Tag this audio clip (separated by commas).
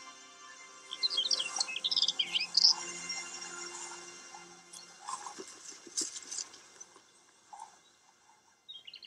outside, rural or natural, Music